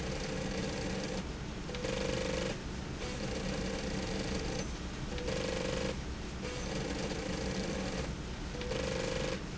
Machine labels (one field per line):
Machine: slide rail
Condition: abnormal